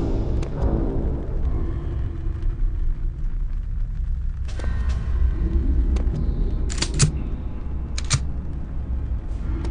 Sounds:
inside a large room or hall, Music

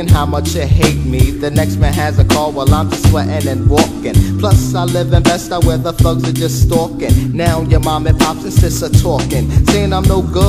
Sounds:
Music

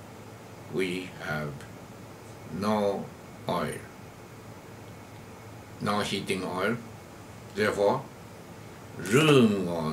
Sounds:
Speech

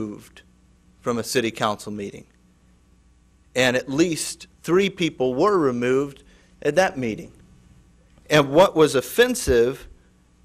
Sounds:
Male speech, Speech, Narration

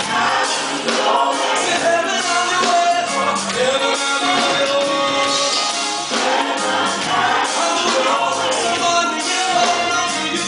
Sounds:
Music

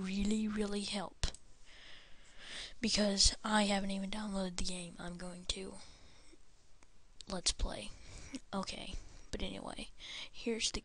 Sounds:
Speech

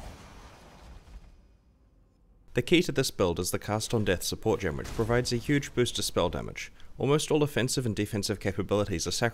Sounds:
Speech

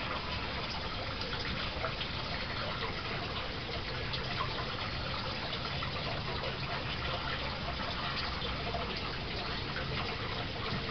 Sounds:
Water

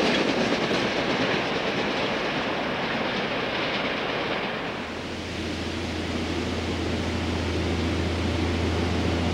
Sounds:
Railroad car, Clickety-clack, Rail transport, Train

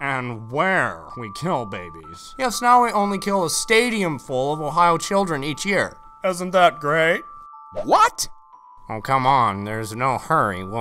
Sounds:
Speech, Music

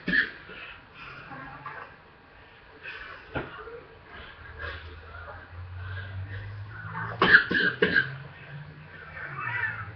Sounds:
Speech

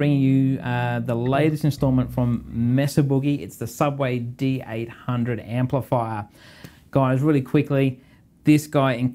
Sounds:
Speech

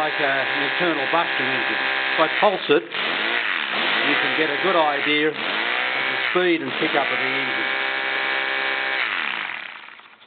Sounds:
Engine, Accelerating, Speech

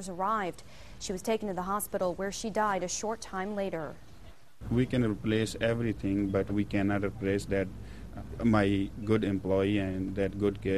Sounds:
Speech

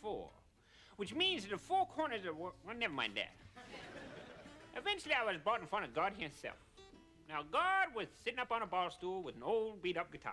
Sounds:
Speech

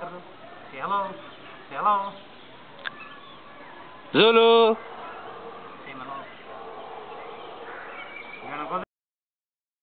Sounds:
Speech

